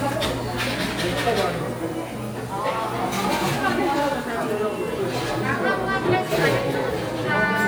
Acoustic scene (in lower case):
cafe